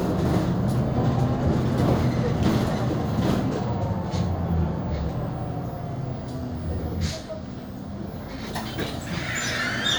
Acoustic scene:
bus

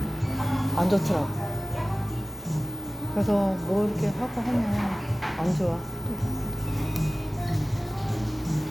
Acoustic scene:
cafe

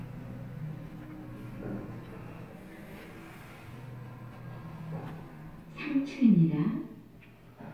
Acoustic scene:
elevator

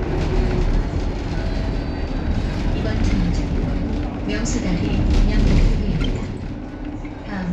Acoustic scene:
bus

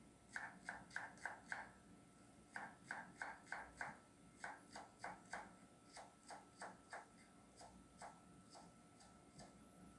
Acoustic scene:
kitchen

